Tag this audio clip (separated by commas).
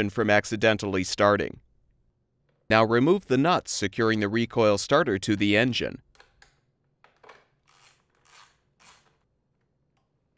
Speech